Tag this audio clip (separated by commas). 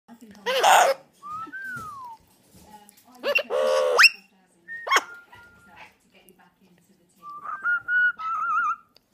Domestic animals, inside a small room, Bird